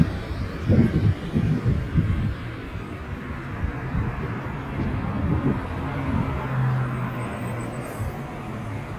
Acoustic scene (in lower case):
residential area